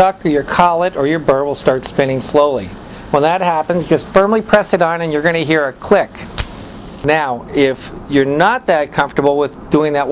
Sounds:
speech

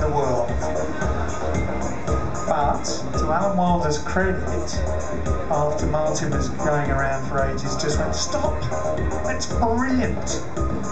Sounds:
speech, music

